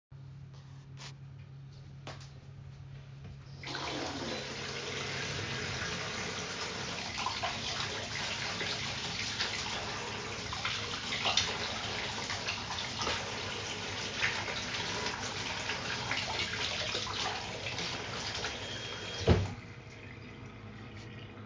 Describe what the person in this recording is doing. I opened the kitchen tap, let the water run for a few seconds and then closed it.